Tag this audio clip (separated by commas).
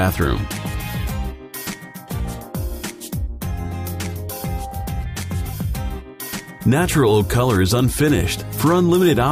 Music, Speech